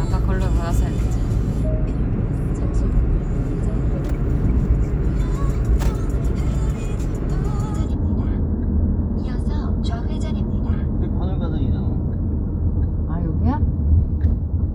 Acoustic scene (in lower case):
car